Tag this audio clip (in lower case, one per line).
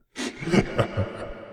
human voice
laughter